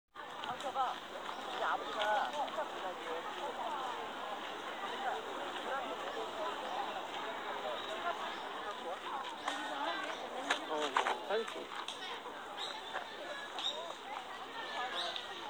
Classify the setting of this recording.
park